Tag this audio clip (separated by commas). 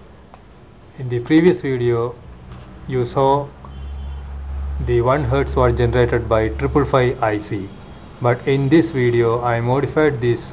Speech